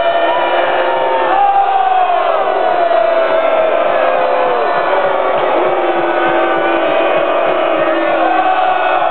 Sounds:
people crowd, Crowd

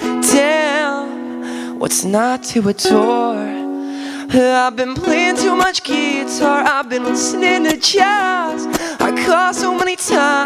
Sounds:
Music

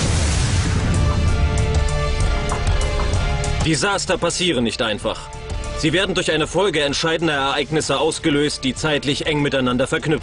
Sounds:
Speech, Explosion, Music

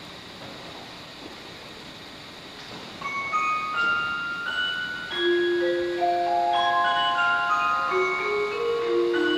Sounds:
Music

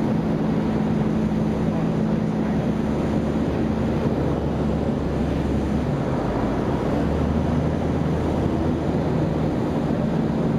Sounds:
Vehicle, Engine, Aircraft

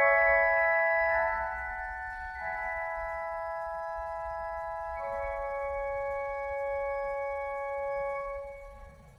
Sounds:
Music

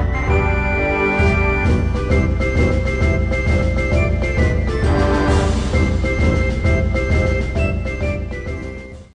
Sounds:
Music

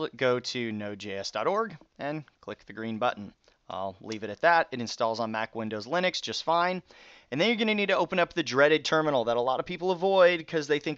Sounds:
Speech

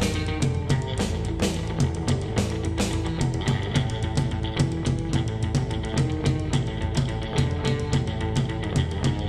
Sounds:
Music

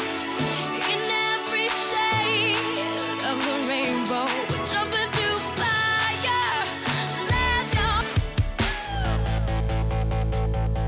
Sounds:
Music

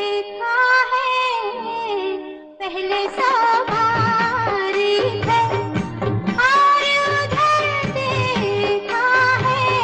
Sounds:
Music, Music of Bollywood, Singing

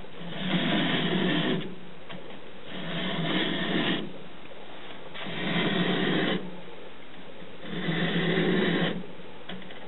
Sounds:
Rub, Filing (rasp)

